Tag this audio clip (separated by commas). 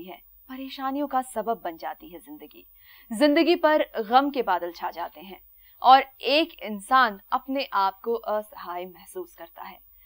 Speech